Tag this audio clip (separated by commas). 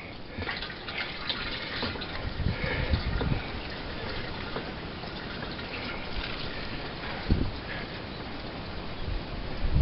Water